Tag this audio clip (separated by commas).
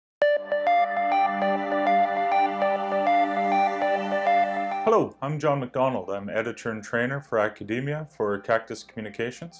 Music, Speech